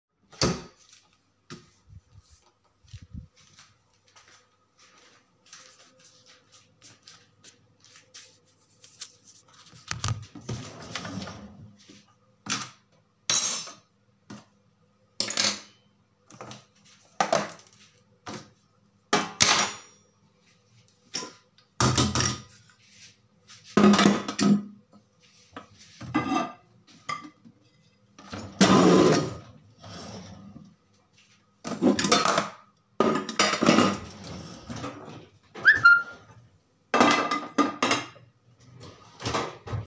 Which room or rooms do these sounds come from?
kitchen